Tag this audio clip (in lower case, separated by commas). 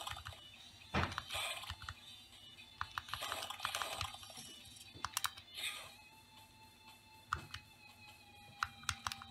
typing, computer keyboard